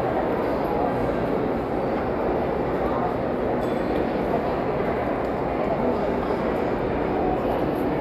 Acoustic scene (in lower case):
crowded indoor space